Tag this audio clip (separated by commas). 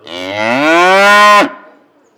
livestock, Animal